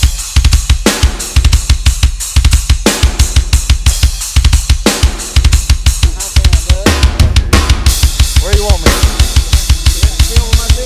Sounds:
music, speech

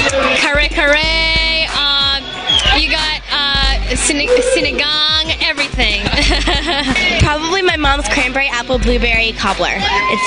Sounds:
music, speech

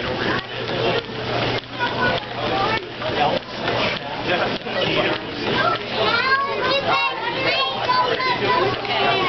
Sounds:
speech

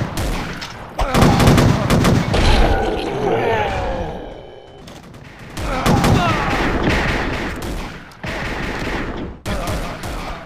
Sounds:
fusillade

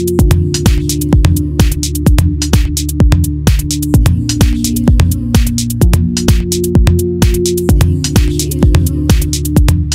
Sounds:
music, exciting music, soundtrack music

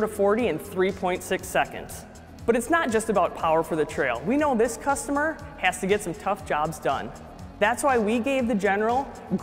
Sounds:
speech, music

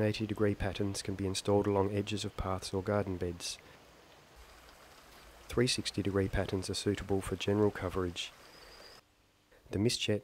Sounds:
speech

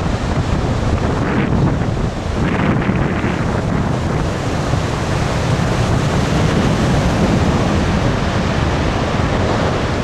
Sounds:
ocean burbling, surf, ocean

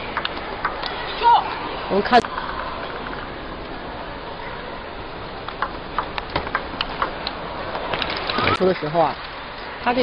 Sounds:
speech

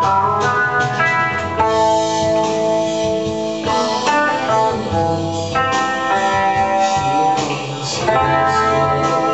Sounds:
guitar, music, musical instrument, plucked string instrument

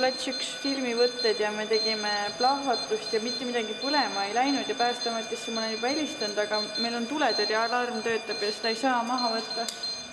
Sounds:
speech, alarm

